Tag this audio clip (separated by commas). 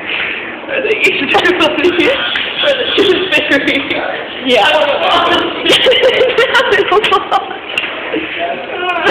Speech